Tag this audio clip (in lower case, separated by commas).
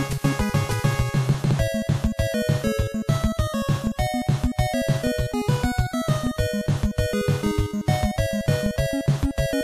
music